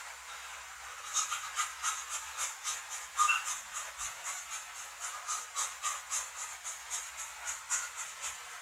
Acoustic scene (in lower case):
restroom